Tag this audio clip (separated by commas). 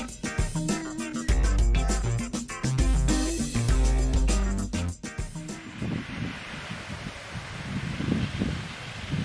Speech, Music